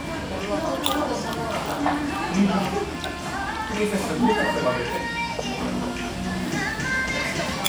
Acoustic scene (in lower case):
restaurant